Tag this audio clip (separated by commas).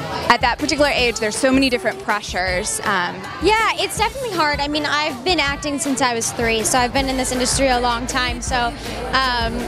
Music, Speech